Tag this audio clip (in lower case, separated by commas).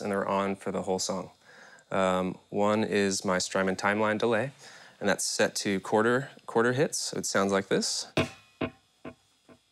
speech